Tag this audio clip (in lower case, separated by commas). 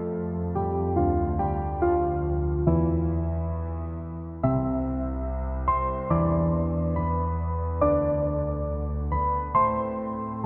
music